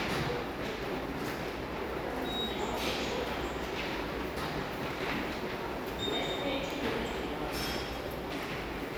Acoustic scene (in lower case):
subway station